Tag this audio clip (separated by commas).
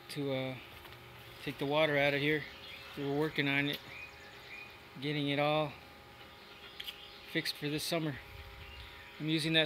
Speech